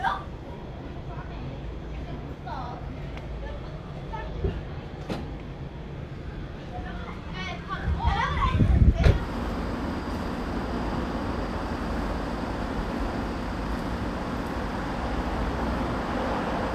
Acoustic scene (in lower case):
residential area